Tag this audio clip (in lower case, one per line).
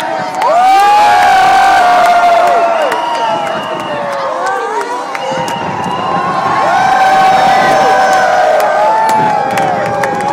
people crowd
fireworks
crowd
speech